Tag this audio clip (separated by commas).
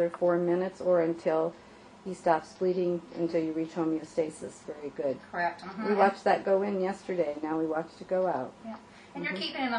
Conversation, Speech